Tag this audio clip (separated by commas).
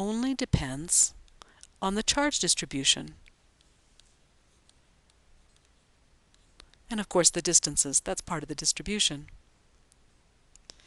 Speech